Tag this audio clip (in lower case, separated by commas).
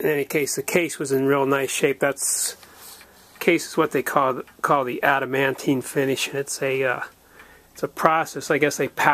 speech